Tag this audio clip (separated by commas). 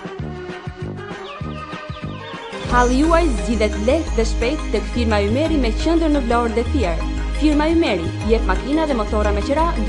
Speech, Music